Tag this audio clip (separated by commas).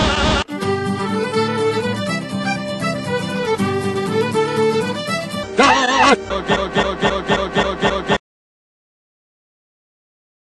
Music, Male singing